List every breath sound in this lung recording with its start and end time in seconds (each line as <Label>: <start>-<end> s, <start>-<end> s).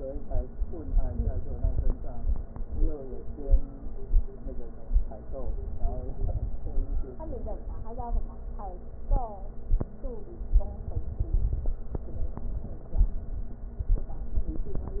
Crackles: 0.64-1.91 s, 5.39-6.80 s, 10.60-11.78 s